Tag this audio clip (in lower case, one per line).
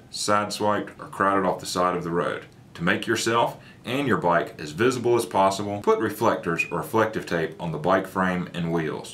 speech